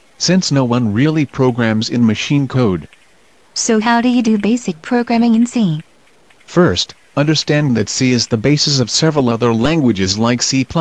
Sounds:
Speech

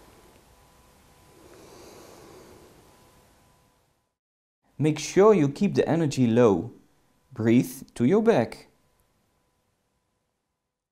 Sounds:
Speech

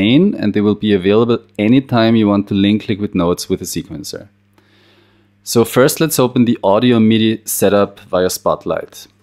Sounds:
Speech

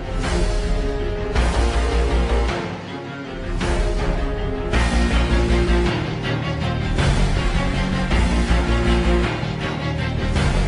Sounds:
Soundtrack music, Music, Theme music

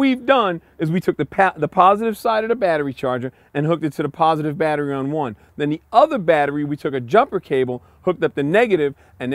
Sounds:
Speech

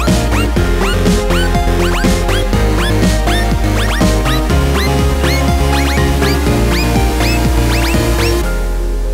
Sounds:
Music

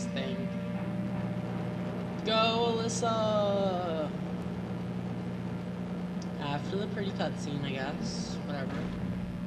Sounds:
Speech

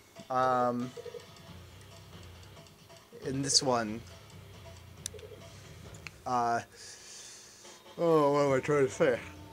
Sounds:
Speech, Music

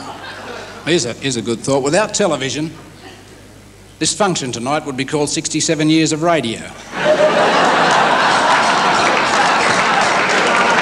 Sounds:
Speech

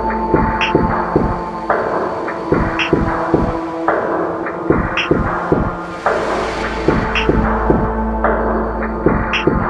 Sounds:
Electronic music, Music

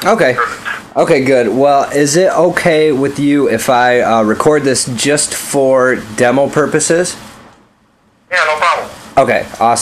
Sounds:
Speech

